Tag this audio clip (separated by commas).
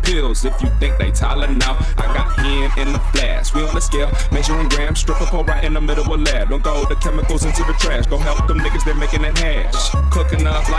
Music